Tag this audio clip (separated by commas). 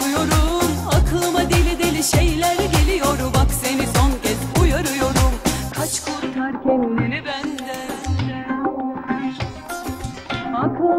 Middle Eastern music